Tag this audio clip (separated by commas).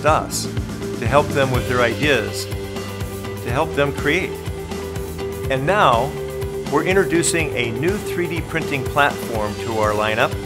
Speech, Music